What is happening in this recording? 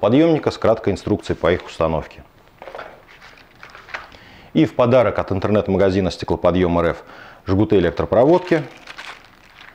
A man speaking, and crumpling in the background